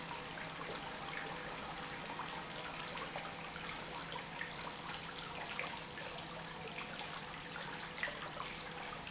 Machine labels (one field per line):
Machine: pump